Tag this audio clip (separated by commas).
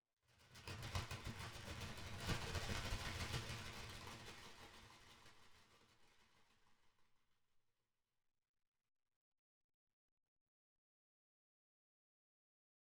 Animal, Wild animals, Bird